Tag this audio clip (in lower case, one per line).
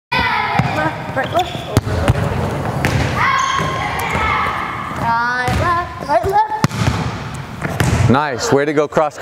playing volleyball